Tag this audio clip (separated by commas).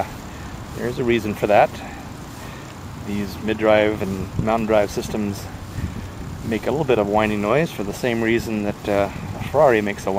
Speech